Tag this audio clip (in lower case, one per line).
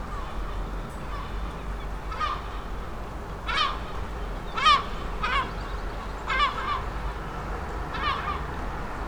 wild animals
seagull
animal
bird